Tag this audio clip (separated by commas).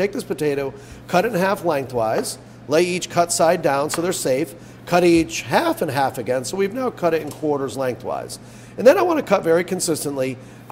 Speech